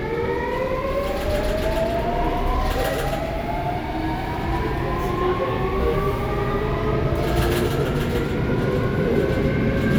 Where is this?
on a subway train